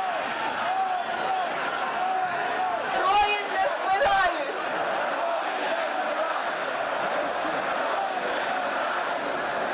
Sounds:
people cheering

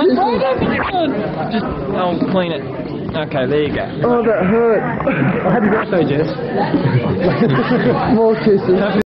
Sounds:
Speech

